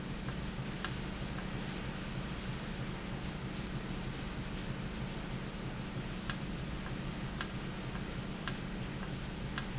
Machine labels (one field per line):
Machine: valve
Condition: normal